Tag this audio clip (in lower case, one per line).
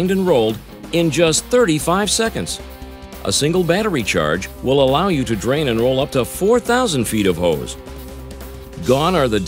speech
music